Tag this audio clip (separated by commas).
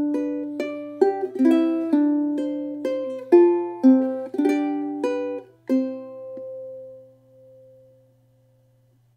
Music